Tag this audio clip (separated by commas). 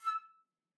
Music, woodwind instrument, Musical instrument